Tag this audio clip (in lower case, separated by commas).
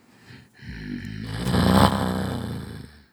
respiratory sounds, breathing